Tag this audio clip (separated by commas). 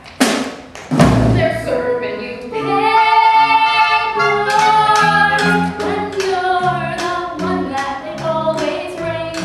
Music, Tap, Speech